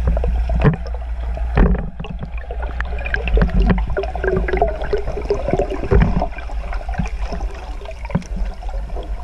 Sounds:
swimming

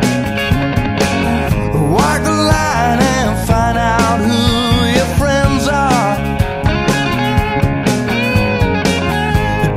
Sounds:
guitar
music

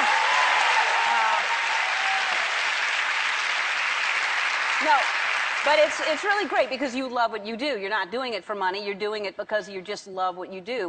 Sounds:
speech

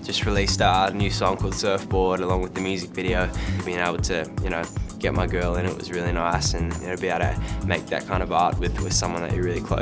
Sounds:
speech
music

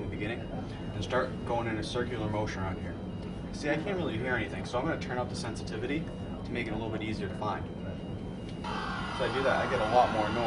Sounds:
speech

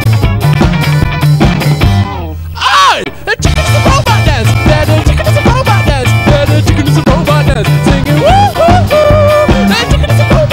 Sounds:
music

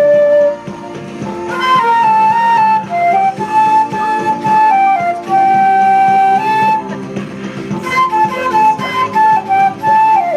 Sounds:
flute
music

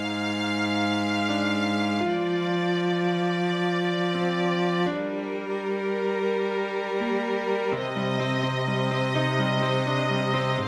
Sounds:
musical instrument
fiddle
music

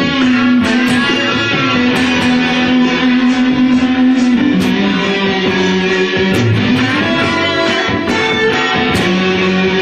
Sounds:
musical instrument
guitar
music

